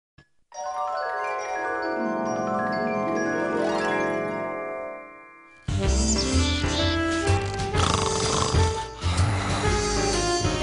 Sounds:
inside a large room or hall, Music

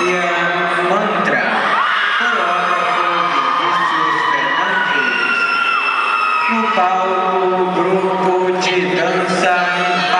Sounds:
Speech

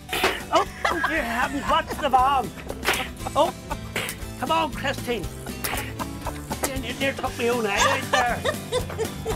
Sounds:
Whip

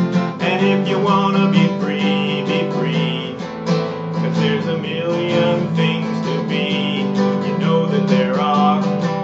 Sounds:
Music

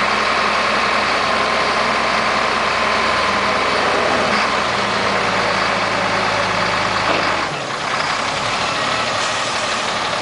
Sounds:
Vehicle, Truck

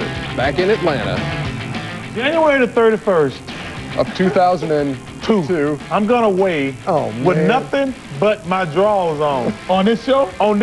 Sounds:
Music, Speech

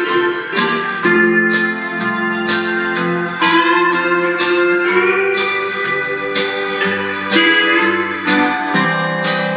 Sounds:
Guitar, Music, Musical instrument, Strum, Plucked string instrument

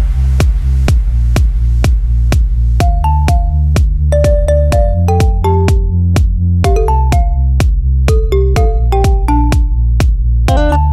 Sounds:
House music

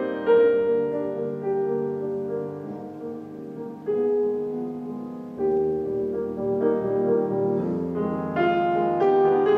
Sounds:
Music, Musical instrument

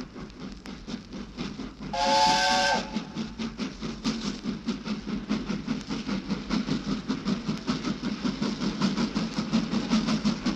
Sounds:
Steam whistle

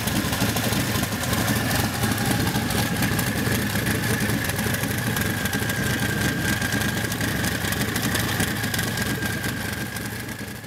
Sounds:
Engine, Heavy engine (low frequency)

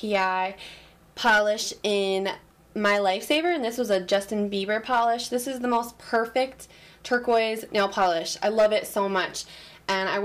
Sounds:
inside a small room, Speech

